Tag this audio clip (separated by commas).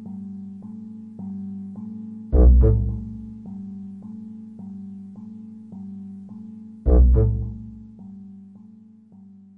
Music